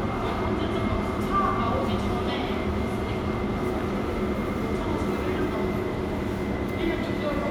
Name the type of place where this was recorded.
subway station